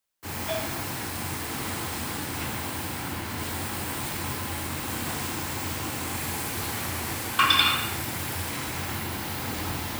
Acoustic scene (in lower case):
restaurant